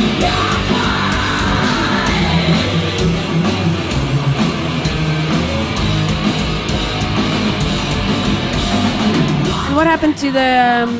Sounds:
music, inside a large room or hall, speech

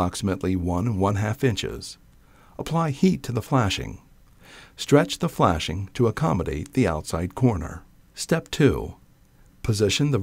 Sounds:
speech

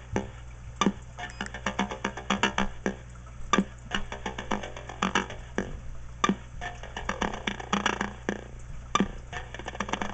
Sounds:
radio

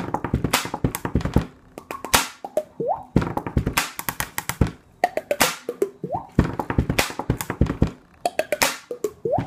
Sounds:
tapping (guitar technique), beatboxing

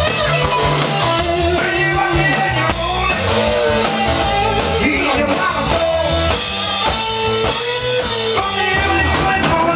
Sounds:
punk rock, rock and roll, music

